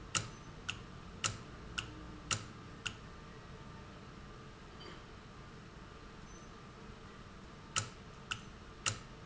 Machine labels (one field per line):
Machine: valve